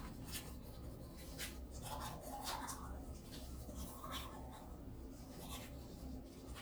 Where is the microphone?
in a restroom